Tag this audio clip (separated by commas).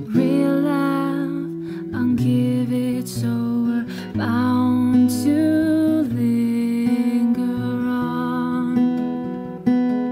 Music